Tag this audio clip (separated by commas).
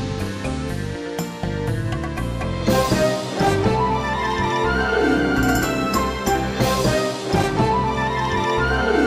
Music